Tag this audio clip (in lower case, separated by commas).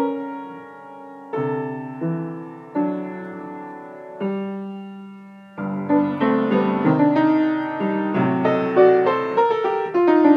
music